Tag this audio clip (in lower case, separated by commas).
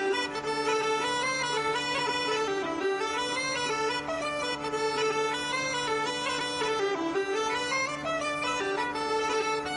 musical instrument, music, violin